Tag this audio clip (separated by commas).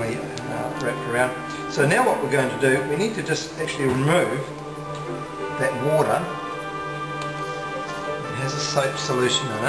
Speech, Music